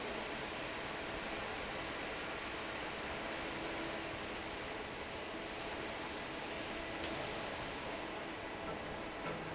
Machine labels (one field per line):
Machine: fan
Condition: normal